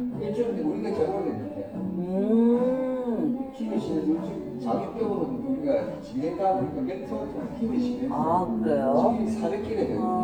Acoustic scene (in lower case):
cafe